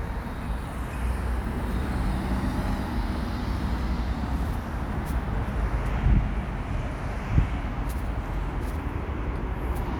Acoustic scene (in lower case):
residential area